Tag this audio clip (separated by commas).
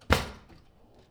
Domestic sounds, Drawer open or close